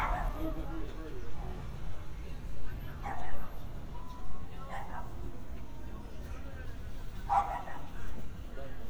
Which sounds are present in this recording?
person or small group talking, dog barking or whining